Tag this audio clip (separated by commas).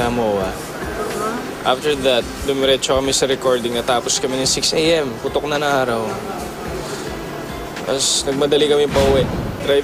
Speech